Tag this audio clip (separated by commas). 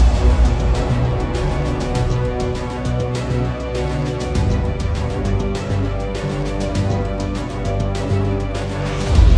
Music